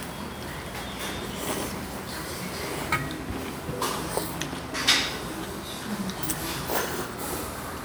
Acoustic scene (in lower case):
restaurant